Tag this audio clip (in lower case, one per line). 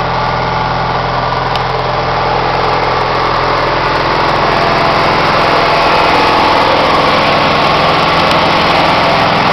vehicle
idling